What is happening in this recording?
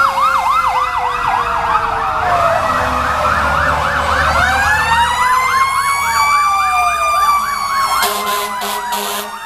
Ambulance and police sirens then a fire truck honks its horn